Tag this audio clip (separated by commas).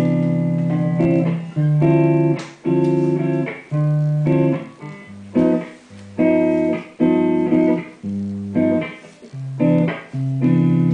Strum, Guitar, Musical instrument, Music, Plucked string instrument